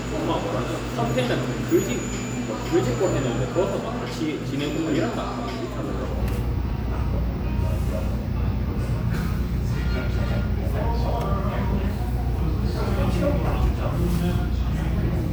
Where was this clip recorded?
in a cafe